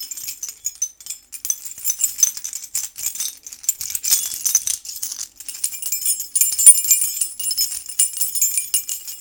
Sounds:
home sounds, keys jangling

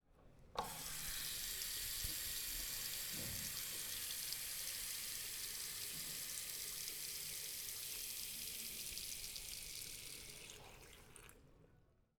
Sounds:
home sounds, faucet

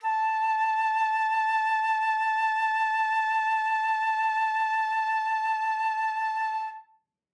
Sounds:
woodwind instrument, music, musical instrument

